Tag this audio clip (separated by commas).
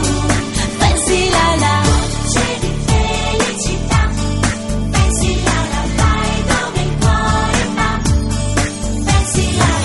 Music, Theme music